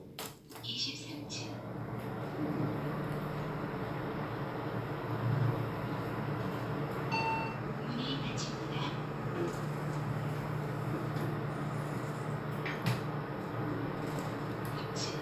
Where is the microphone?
in an elevator